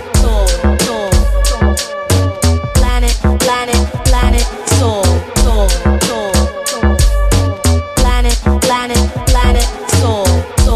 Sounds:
afrobeat
music

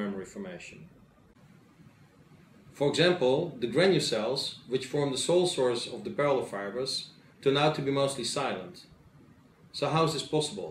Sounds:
speech

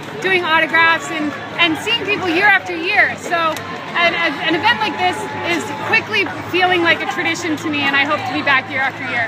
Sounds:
speech
outside, urban or man-made

